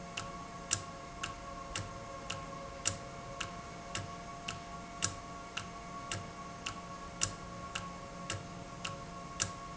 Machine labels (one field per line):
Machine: valve